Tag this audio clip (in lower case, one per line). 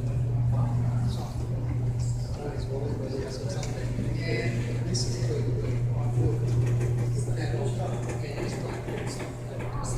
speech